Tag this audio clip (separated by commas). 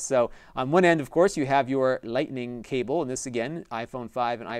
Speech